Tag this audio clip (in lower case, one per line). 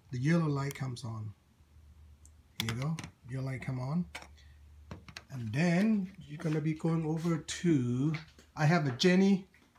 speech